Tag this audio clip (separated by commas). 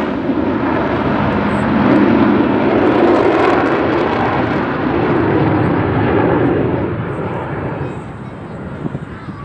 Flap